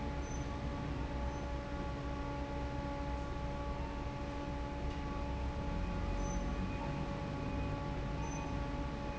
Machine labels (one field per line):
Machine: fan